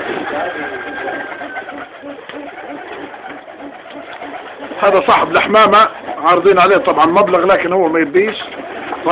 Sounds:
coo
dove
bird
bird vocalization

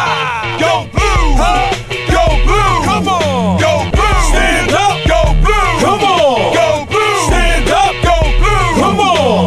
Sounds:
music

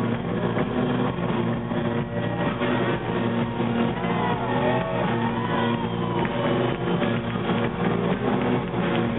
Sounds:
music
cheering

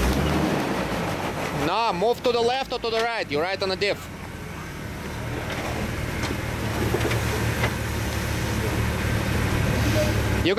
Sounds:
speech

